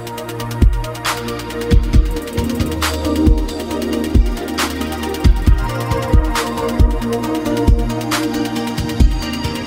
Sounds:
music, electronica

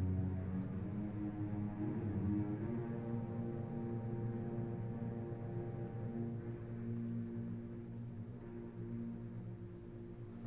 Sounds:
violin, music

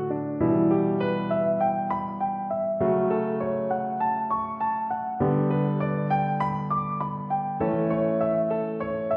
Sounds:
music

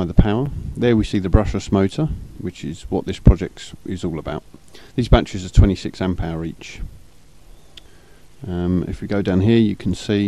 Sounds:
speech, monologue

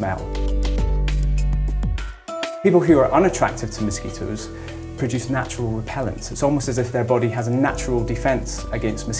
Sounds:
insect, fly, mosquito

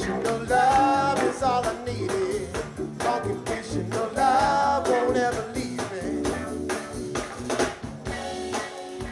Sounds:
happy music, music

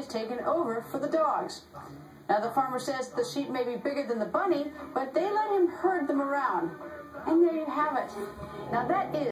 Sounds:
speech

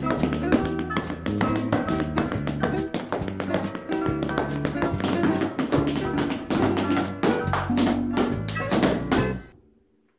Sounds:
tap dancing

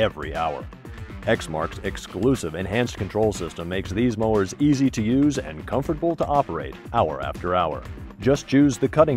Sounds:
music, speech

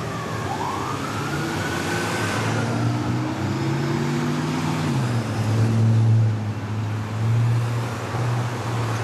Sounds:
emergency vehicle, siren, police car (siren)

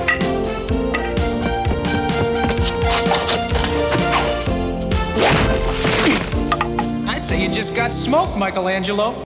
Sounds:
speech, music

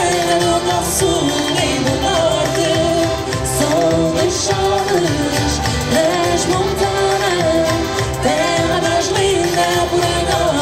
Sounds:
singing, music

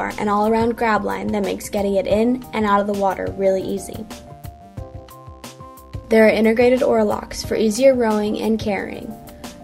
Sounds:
music, speech

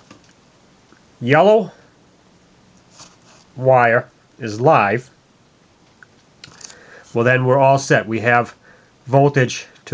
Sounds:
speech, inside a small room

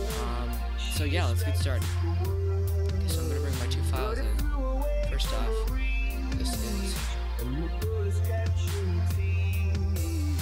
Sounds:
speech, music

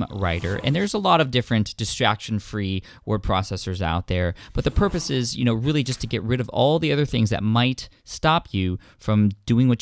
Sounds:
speech

